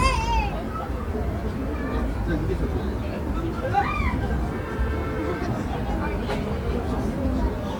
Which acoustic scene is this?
residential area